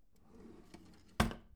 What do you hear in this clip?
wooden drawer closing